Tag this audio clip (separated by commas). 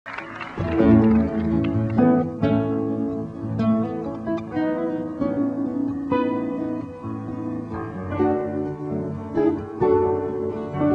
Music, Jazz